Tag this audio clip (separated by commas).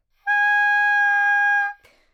Musical instrument, Music, woodwind instrument